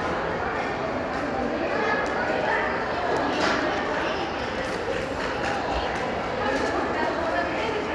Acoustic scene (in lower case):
crowded indoor space